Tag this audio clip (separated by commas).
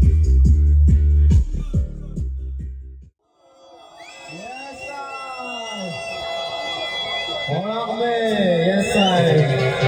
Music, Beep